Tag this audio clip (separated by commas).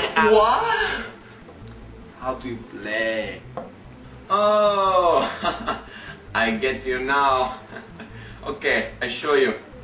Music, Speech